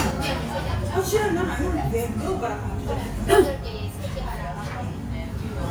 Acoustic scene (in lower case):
restaurant